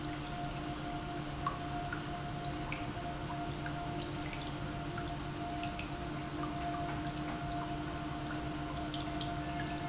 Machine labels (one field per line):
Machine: pump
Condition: normal